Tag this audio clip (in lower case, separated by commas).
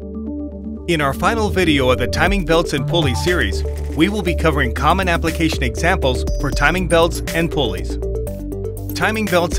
speech, music